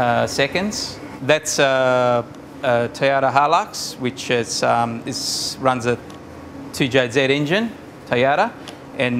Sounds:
Vehicle, Speech

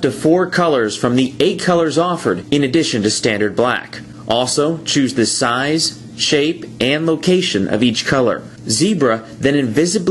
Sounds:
Speech

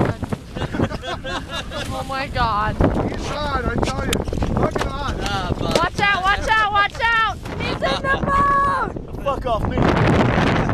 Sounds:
Speech

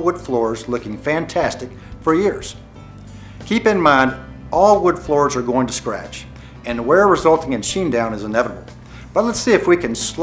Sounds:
Speech, Music

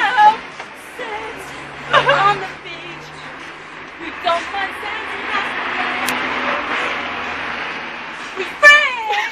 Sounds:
Vehicle, Female singing

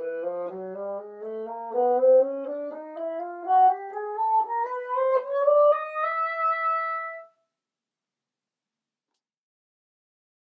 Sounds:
playing bassoon

